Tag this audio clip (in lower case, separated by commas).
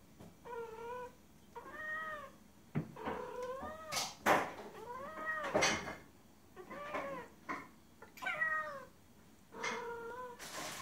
cat caterwauling